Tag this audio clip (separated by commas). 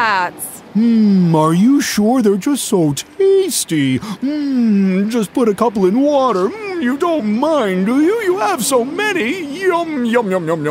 Speech